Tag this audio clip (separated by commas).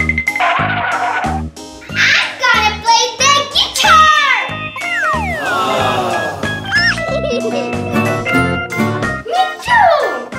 child singing